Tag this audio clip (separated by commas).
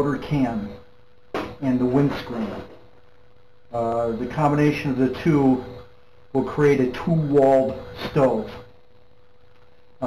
Speech